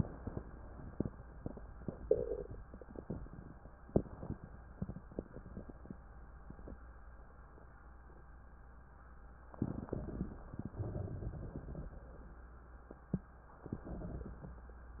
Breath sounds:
9.55-10.60 s: inhalation
10.71-12.10 s: exhalation
13.60-14.69 s: inhalation

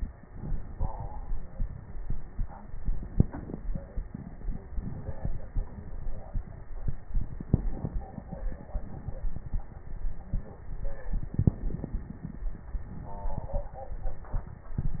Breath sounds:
3.12-3.62 s: inhalation
7.46-7.97 s: inhalation
11.39-11.90 s: inhalation

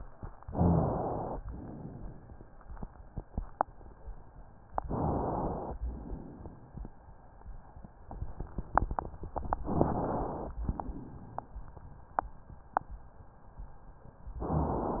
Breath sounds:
0.46-0.88 s: rhonchi
0.46-1.37 s: inhalation
1.50-2.41 s: exhalation
4.76-5.75 s: inhalation
5.83-6.81 s: exhalation
9.68-10.57 s: inhalation
10.66-11.56 s: exhalation
14.42-15.00 s: inhalation

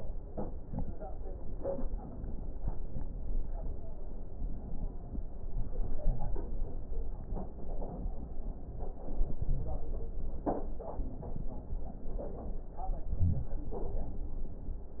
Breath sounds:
5.47-6.90 s: inhalation
8.76-10.19 s: inhalation

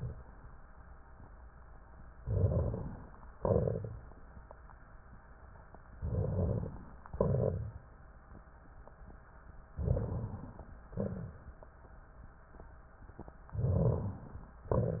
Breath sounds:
2.18-3.19 s: inhalation
2.18-3.19 s: crackles
3.35-4.19 s: exhalation
3.35-4.19 s: crackles
5.95-6.79 s: inhalation
5.95-6.79 s: crackles
7.08-7.92 s: exhalation
7.08-7.92 s: crackles
9.74-10.73 s: inhalation
9.74-10.73 s: crackles
10.90-11.73 s: exhalation
10.90-11.73 s: crackles
13.58-14.54 s: inhalation

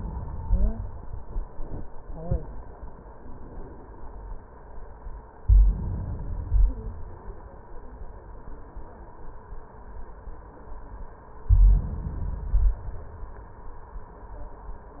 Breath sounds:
0.39-0.83 s: stridor
5.42-6.41 s: inhalation
6.40-7.39 s: exhalation
11.41-12.38 s: inhalation
12.34-13.31 s: exhalation

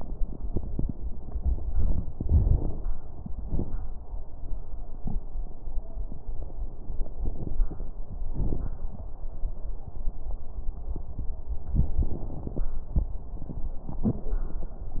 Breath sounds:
2.16-2.94 s: inhalation
2.16-2.94 s: crackles
3.41-3.90 s: exhalation
3.41-3.90 s: crackles

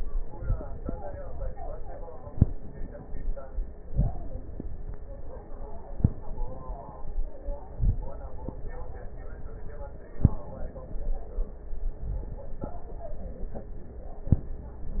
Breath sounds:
3.83-4.24 s: inhalation
7.75-8.16 s: inhalation

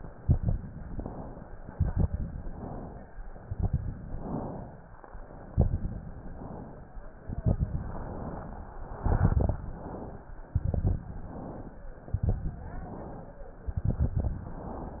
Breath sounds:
0.00-0.70 s: exhalation
0.00-0.70 s: crackles
0.73-1.55 s: inhalation
1.67-2.37 s: exhalation
1.67-2.37 s: crackles
2.42-3.12 s: inhalation
3.38-4.08 s: exhalation
3.38-4.08 s: crackles
4.09-4.85 s: inhalation
5.47-6.23 s: exhalation
5.47-6.23 s: crackles
6.22-6.98 s: inhalation
7.18-7.87 s: exhalation
7.18-7.87 s: crackles
7.89-8.67 s: inhalation
8.99-9.63 s: exhalation
8.99-9.63 s: crackles
9.64-10.42 s: inhalation
10.47-11.11 s: exhalation
10.47-11.11 s: crackles
11.12-11.90 s: inhalation
12.06-12.71 s: exhalation
12.06-12.71 s: crackles
12.73-13.51 s: inhalation
13.71-14.36 s: exhalation
13.71-14.36 s: crackles
14.42-15.00 s: inhalation

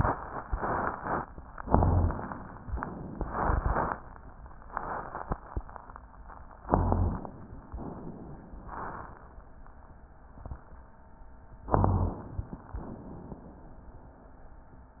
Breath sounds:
1.61-2.18 s: rhonchi
1.61-2.56 s: inhalation
2.73-3.68 s: exhalation
6.62-7.57 s: inhalation
6.68-7.25 s: rhonchi
7.76-8.71 s: exhalation
11.67-12.62 s: inhalation
11.69-12.26 s: rhonchi
12.77-13.72 s: exhalation

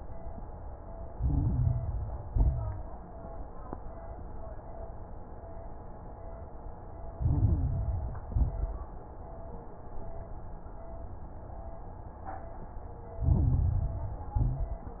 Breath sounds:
1.04-2.22 s: inhalation
1.04-2.22 s: crackles
2.26-2.89 s: exhalation
2.26-2.89 s: crackles
7.12-8.30 s: inhalation
7.12-8.30 s: crackles
8.32-8.95 s: exhalation
8.32-8.95 s: crackles
13.19-14.36 s: inhalation
13.19-14.36 s: crackles
14.40-15.00 s: exhalation
14.40-15.00 s: crackles

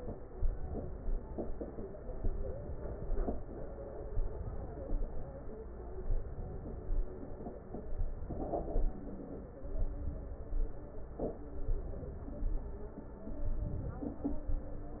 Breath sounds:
0.34-1.16 s: inhalation
2.24-3.06 s: inhalation
4.12-4.94 s: inhalation
6.08-6.89 s: inhalation
8.07-8.89 s: inhalation
9.75-10.56 s: inhalation
11.72-12.54 s: inhalation
13.68-14.50 s: inhalation

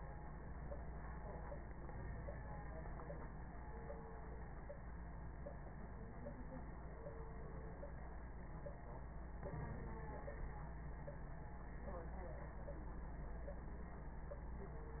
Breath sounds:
1.74-2.61 s: inhalation
9.44-10.21 s: inhalation

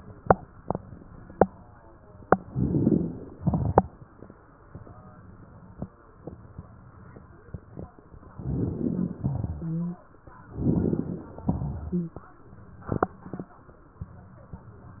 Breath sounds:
2.45-3.39 s: inhalation
2.47-3.35 s: crackles
3.36-4.04 s: exhalation
3.36-4.04 s: crackles
8.30-9.17 s: inhalation
8.30-9.17 s: crackles
9.18-10.06 s: exhalation
9.18-10.06 s: crackles
9.49-10.06 s: wheeze
10.48-11.45 s: inhalation
10.48-11.45 s: crackles
11.48-12.26 s: exhalation
11.48-12.26 s: crackles
11.83-12.26 s: wheeze

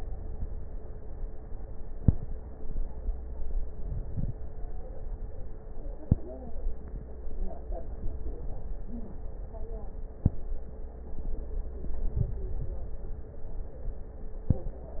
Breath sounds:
3.73-4.43 s: inhalation
3.73-4.43 s: crackles
7.69-9.13 s: inhalation
7.69-9.13 s: crackles
11.99-13.43 s: inhalation
11.99-13.43 s: crackles

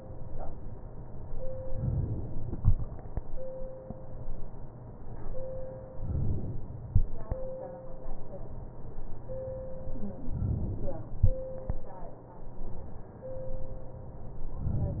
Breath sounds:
5.98-6.70 s: inhalation
10.34-11.05 s: inhalation

